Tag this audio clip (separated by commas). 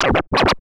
Musical instrument, Music, Scratching (performance technique)